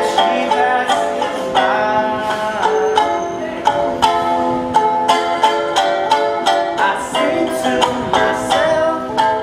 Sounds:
Ukulele, Music

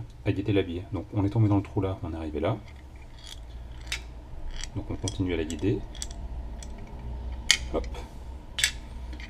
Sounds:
Speech

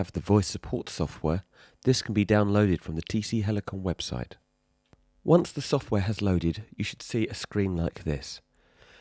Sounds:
Speech

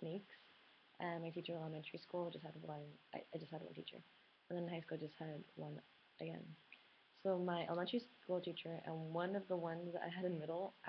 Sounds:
Female speech, Speech

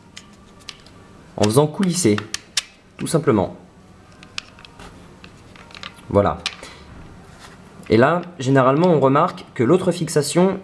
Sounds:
Speech

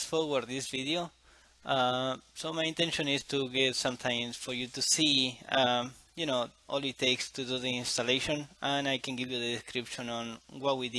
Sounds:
Speech

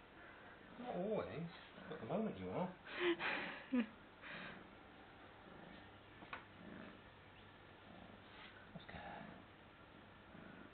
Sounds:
Speech

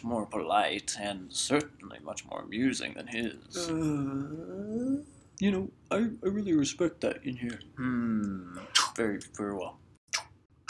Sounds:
Speech, inside a large room or hall

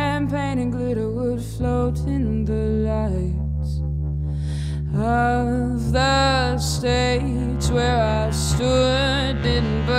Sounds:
Music

